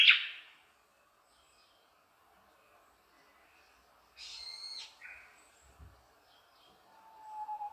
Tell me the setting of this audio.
park